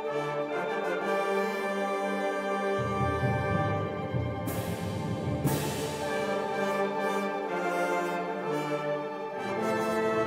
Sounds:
orchestra, inside a large room or hall, bowed string instrument, music

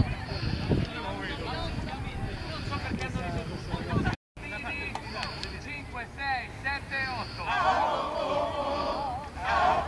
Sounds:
speech

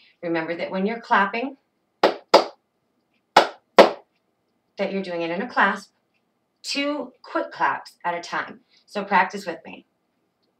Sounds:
speech

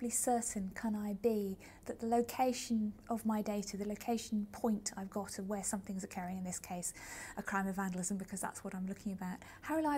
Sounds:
speech

